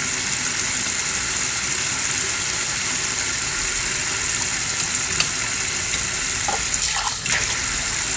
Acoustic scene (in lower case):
kitchen